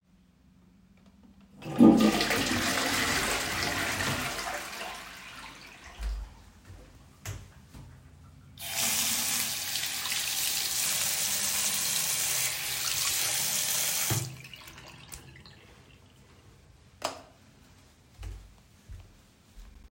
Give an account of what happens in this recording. I flushed the toilet, went to the sink and washed my hands, used the towel to dry my hands, switch off the light and went out of the bathroom.